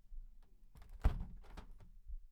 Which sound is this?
wooden window closing